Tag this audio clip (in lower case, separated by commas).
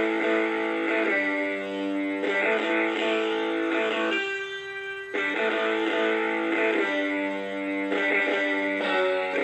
plucked string instrument, music, guitar, musical instrument, strum